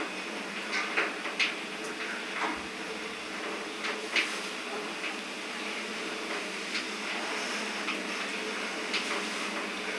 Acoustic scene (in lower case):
elevator